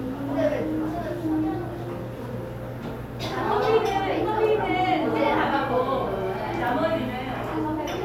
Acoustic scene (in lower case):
cafe